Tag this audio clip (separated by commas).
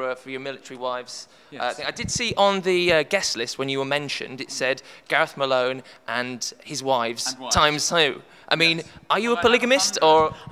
Speech